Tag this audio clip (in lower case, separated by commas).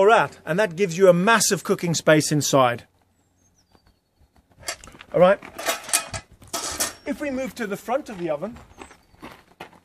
outside, rural or natural, speech